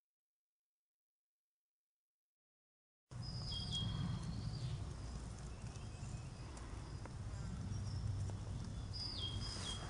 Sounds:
outside, rural or natural
silence
insect

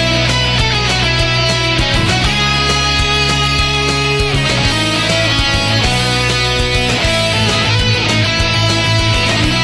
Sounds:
music

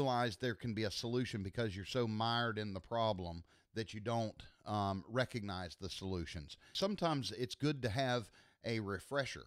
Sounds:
speech

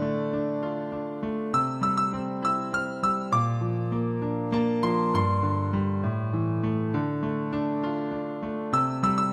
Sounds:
music

